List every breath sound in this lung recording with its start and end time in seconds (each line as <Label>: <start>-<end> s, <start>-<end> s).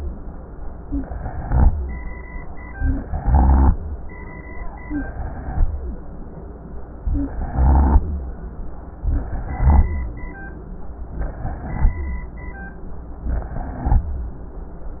Inhalation: 0.82-1.69 s, 3.00-3.78 s, 4.88-5.66 s, 7.27-8.05 s, 9.09-9.87 s, 11.18-11.96 s, 13.28-14.06 s
Rhonchi: 0.89-1.67 s, 3.00-3.78 s, 4.88-5.66 s, 7.27-8.05 s, 9.09-9.87 s, 11.18-11.96 s, 13.28-14.06 s